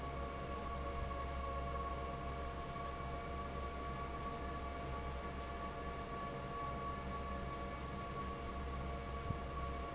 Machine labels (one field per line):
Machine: fan